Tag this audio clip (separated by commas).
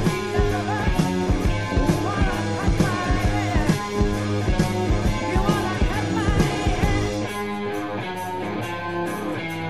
Music, Grunge